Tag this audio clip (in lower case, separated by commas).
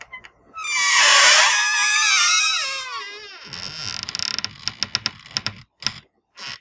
squeak, home sounds, door